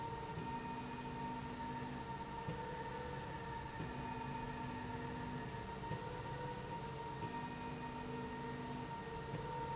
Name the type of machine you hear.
slide rail